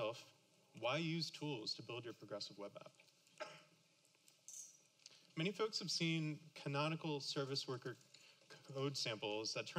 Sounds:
tools
speech

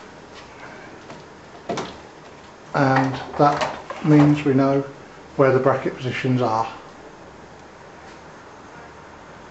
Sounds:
speech

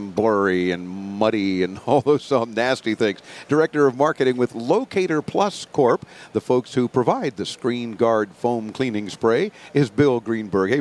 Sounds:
speech

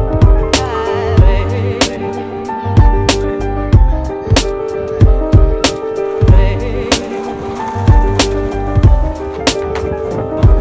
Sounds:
skateboard

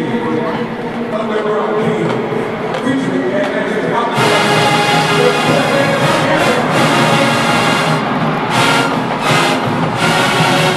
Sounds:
people marching

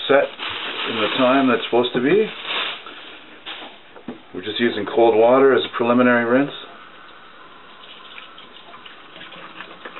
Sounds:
sink (filling or washing)
inside a small room
faucet
speech

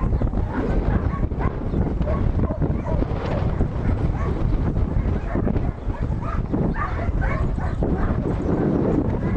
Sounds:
bleat

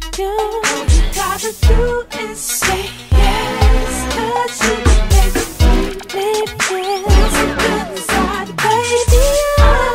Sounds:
music

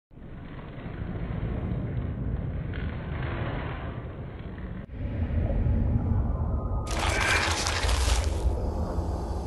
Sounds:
music

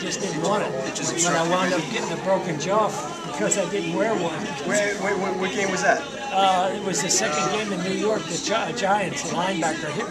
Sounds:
inside a public space
speech
conversation

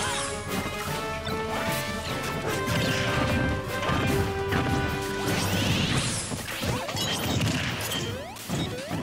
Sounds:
smash

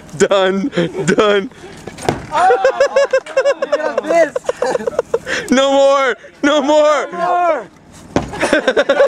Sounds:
speech

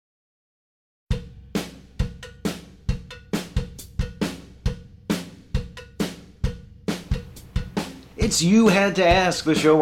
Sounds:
drum kit

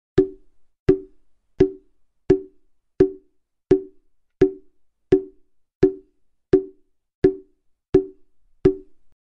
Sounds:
percussion

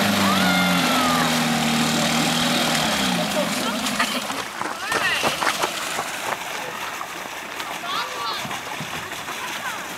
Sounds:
water vehicle
motorboat

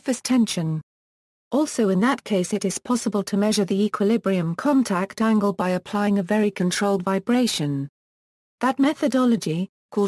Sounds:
speech

